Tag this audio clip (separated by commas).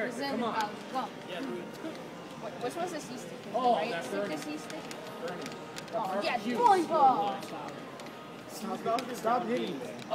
Speech